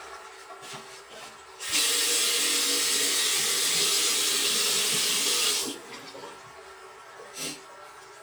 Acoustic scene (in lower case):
restroom